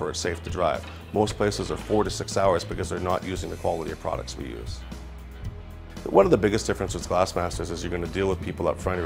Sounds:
speech, music

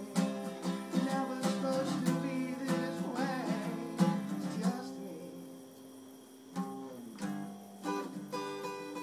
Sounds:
music

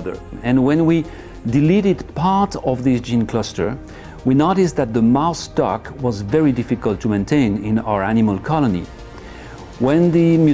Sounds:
music, speech

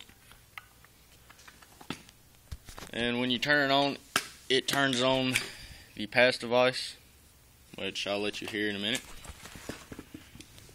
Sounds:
speech

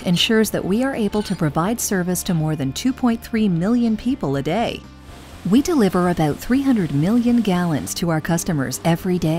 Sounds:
speech, music

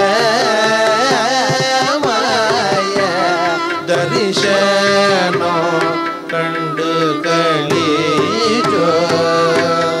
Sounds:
musical instrument, carnatic music, music, plucked string instrument

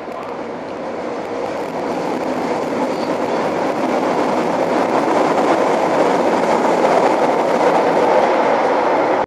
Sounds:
vehicle, underground, train, rail transport

